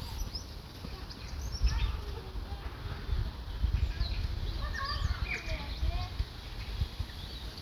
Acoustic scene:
park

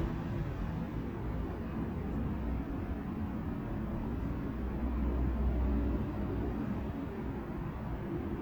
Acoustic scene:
residential area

